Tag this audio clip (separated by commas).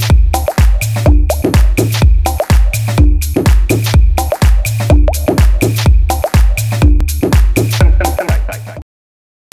Music, Techno